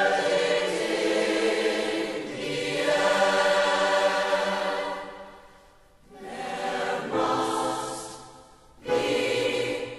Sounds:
Soul music, Music

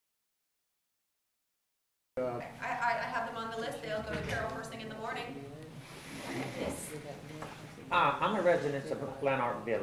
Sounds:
Speech

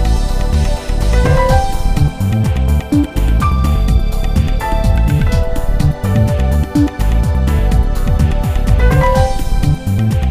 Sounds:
Soul music, Soundtrack music, Music

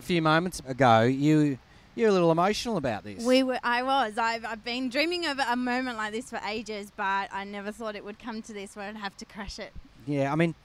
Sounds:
Speech

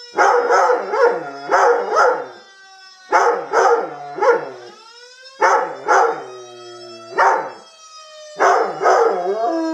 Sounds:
Siren

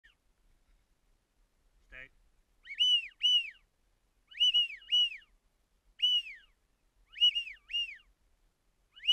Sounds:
Speech

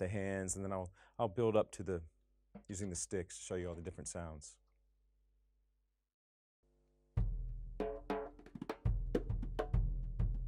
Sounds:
Drum, Percussion

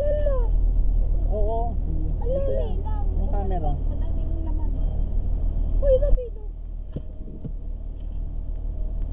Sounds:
Vehicle, Speech

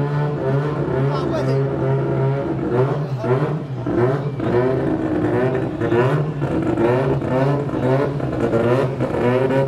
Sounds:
Speech

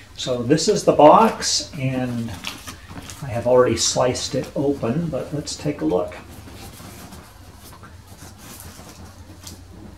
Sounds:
Speech

